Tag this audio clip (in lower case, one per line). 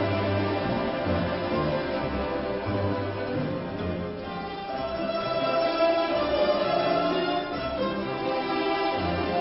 classical music
orchestra
music